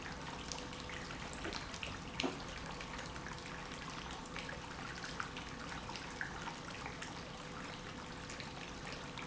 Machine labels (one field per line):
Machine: pump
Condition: normal